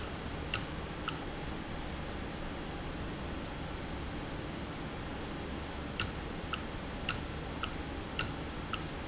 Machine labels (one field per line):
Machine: valve